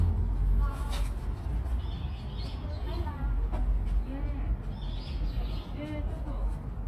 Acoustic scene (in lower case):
park